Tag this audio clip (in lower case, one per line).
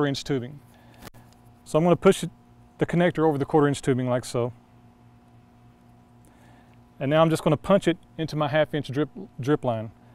speech